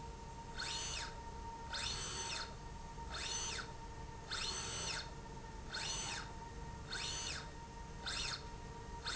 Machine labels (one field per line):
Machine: slide rail